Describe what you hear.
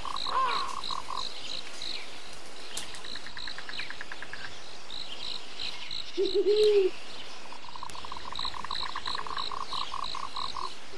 Birds chirping, and animals clacking, an owl saying who